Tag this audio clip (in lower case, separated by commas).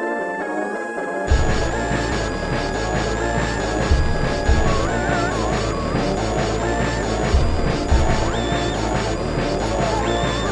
music, soundtrack music